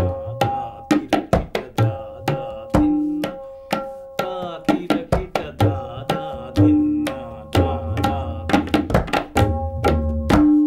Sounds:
playing tabla

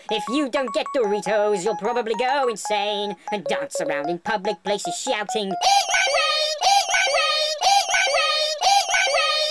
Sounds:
Music, Speech

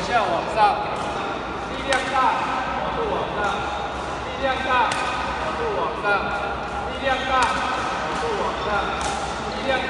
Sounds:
playing badminton

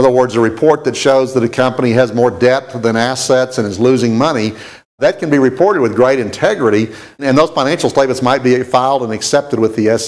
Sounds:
Speech

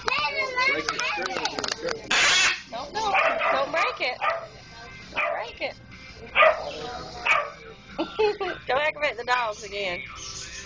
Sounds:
Dog, Speech, Animal, Domestic animals, canids, Yip

